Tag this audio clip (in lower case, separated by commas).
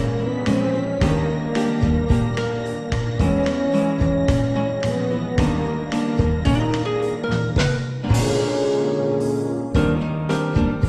jazz